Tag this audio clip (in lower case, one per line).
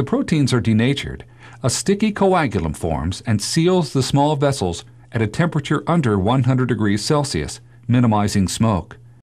speech